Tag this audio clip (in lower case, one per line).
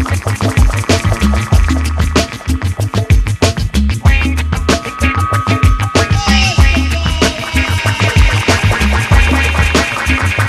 music